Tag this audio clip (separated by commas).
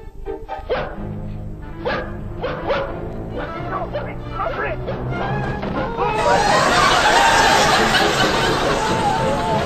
Bow-wow, Speech, Animal, Music, pets